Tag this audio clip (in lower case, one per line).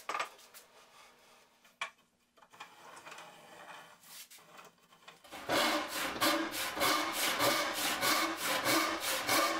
rub
sawing
wood